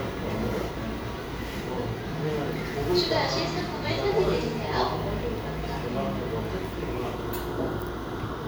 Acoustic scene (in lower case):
cafe